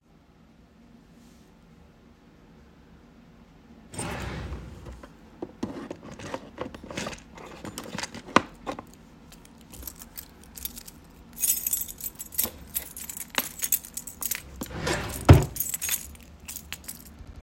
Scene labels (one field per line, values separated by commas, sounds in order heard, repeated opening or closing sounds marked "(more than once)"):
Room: bedroom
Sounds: wardrobe or drawer (more than once), keys